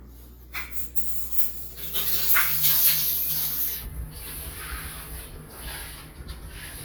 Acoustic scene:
restroom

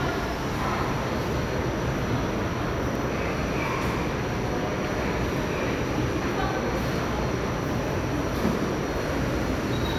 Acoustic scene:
subway station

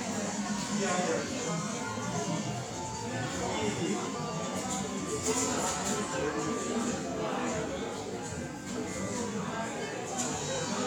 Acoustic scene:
cafe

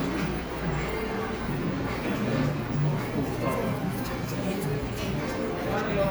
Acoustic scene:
cafe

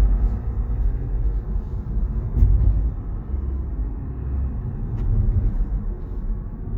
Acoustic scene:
car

